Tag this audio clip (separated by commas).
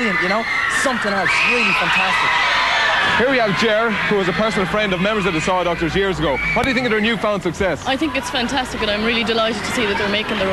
Speech